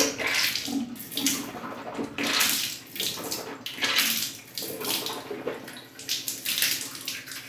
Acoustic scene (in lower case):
restroom